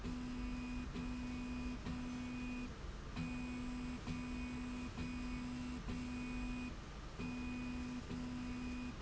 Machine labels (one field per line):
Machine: slide rail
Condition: normal